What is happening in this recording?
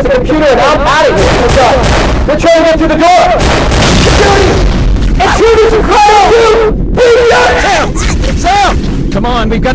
A man yelling and gunfire